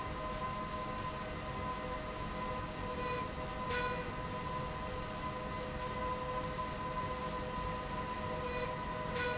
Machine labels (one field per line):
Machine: slide rail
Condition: normal